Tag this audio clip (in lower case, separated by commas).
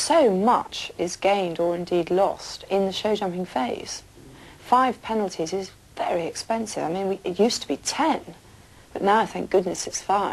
speech